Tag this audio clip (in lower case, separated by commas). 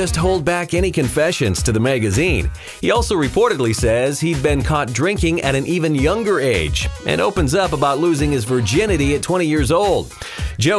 music, speech